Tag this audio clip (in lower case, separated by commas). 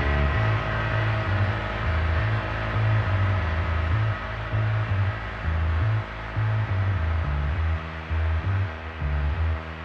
electronica, music